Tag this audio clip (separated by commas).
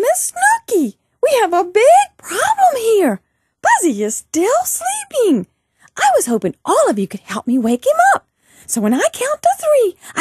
Speech